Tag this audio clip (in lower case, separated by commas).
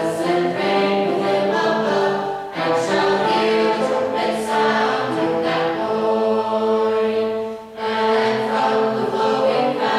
trumpet, musical instrument, music